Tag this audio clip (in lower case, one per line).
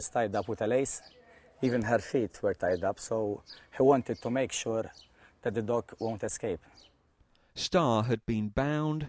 speech